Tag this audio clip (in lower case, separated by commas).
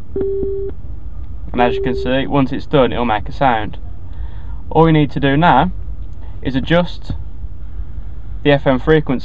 speech